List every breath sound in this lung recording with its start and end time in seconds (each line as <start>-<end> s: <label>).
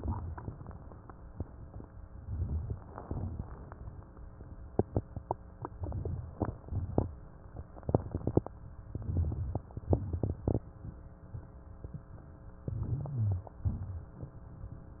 0.00-0.99 s: crackles
0.00-1.03 s: exhalation
2.04-3.00 s: crackles
2.07-3.02 s: inhalation
3.03-4.72 s: crackles
3.03-4.72 s: exhalation
5.67-6.51 s: crackles
5.71-6.51 s: inhalation
6.59-7.55 s: crackles
6.59-7.57 s: exhalation
7.79-8.52 s: inhalation
7.79-8.52 s: crackles
8.93-9.77 s: exhalation
8.93-9.77 s: crackles
9.81-10.66 s: inhalation
9.81-10.66 s: crackles
12.61-13.45 s: inhalation
12.61-13.45 s: crackles
13.61-14.46 s: exhalation
13.61-14.47 s: crackles